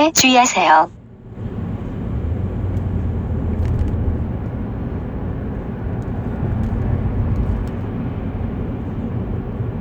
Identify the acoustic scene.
car